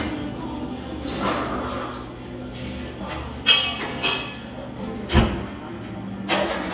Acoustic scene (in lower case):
cafe